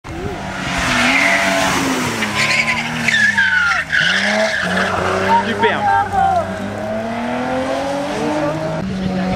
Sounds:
Speech, auto racing, Tire squeal, Vehicle

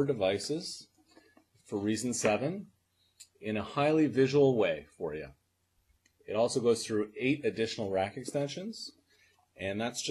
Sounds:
Speech

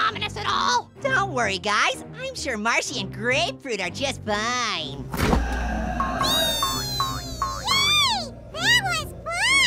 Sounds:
ice cream van

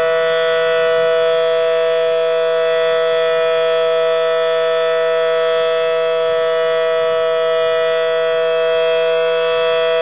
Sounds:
Civil defense siren, Siren

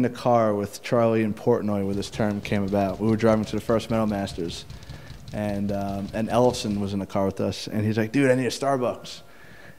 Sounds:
Speech

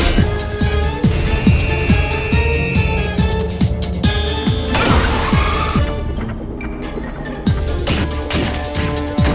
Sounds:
thwack

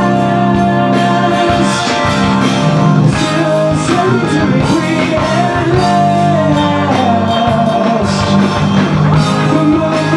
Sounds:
Guitar, Drum kit, Musical instrument, Progressive rock, Heavy metal, Music, Rock music, Percussion

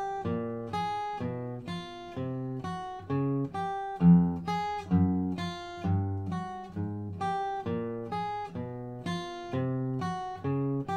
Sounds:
Plucked string instrument, Acoustic guitar, Musical instrument, Guitar, Music

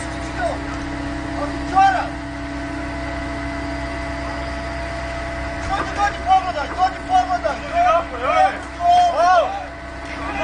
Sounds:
Speech

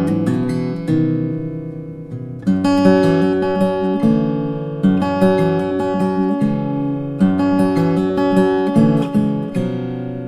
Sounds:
Musical instrument, Guitar, Music, Plucked string instrument, Acoustic guitar

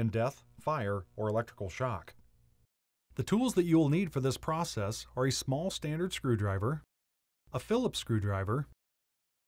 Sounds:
Speech

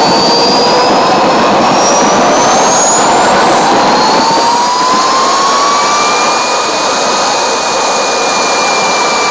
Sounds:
Jet engine, Vehicle, Heavy engine (low frequency)

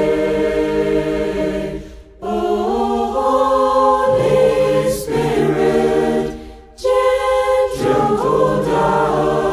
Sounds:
A capella

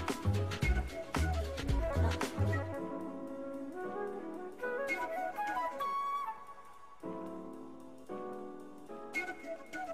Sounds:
Clarinet, Music

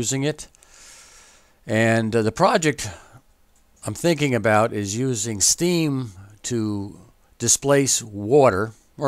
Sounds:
Speech

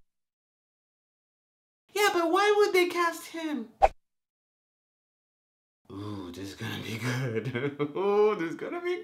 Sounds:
inside a small room, Music, Speech

